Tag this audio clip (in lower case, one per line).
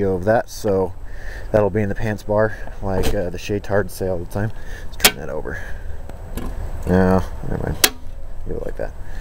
speech